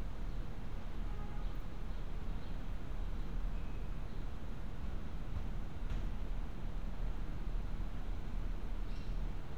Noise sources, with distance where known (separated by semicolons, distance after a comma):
car horn, far